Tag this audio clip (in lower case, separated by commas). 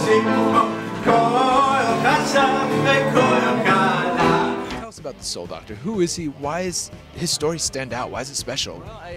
music, speech